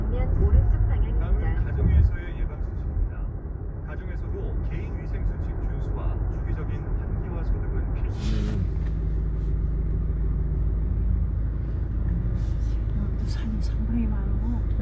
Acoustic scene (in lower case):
car